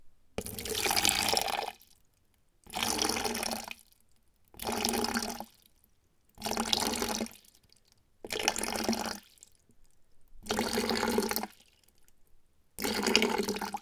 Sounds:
Liquid

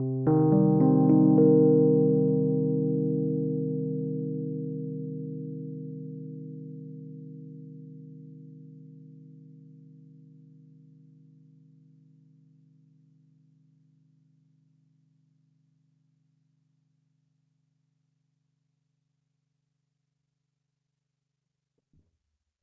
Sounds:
Piano, Keyboard (musical), Musical instrument, Music

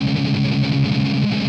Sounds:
Musical instrument, Strum, Guitar, Music, Plucked string instrument

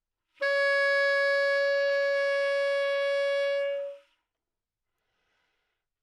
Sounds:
Music, woodwind instrument, Musical instrument

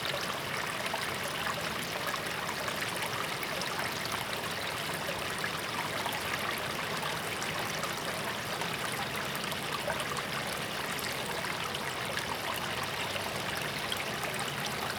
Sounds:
Stream, Water, Liquid

